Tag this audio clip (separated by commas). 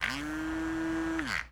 home sounds